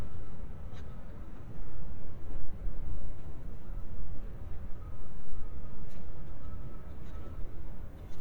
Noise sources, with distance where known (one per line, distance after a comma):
background noise